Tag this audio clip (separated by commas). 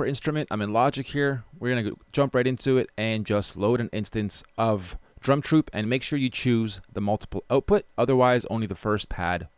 Speech